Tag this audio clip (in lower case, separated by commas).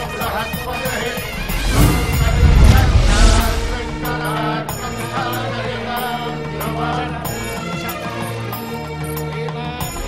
music, sound effect